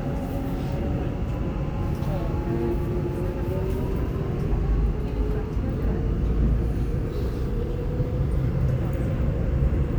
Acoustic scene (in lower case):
subway train